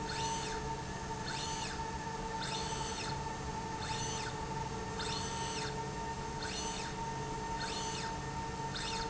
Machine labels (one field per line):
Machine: slide rail